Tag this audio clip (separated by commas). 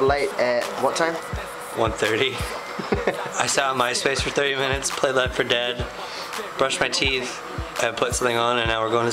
Music, Speech